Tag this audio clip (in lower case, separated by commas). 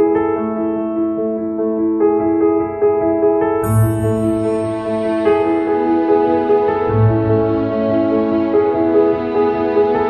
music